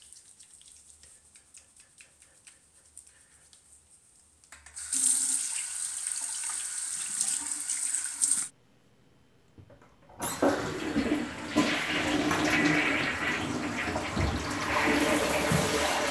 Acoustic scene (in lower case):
restroom